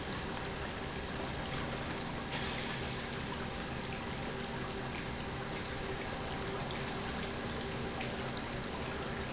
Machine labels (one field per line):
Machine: pump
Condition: normal